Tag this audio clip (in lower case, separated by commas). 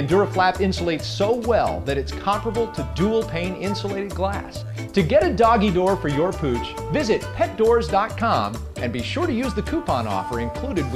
music, speech